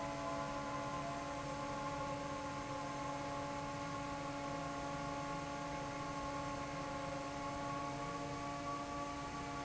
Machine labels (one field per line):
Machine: fan